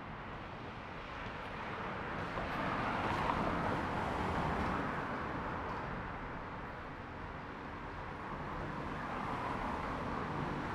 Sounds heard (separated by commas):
car wheels rolling, motorcycle engine accelerating, car, motorcycle